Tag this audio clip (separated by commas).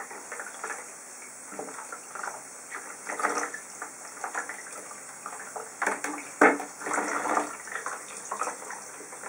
Sink (filling or washing), Water